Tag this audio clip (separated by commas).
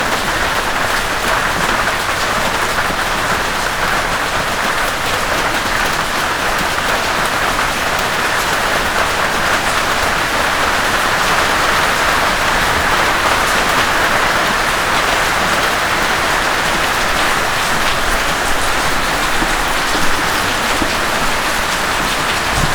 Rain, Water